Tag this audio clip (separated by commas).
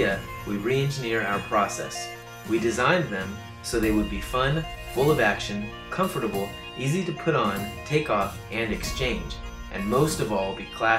Music, Speech